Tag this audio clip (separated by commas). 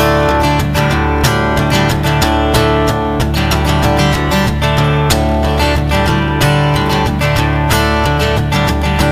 Music